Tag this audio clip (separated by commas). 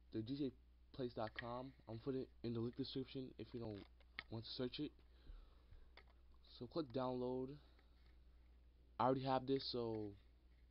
Speech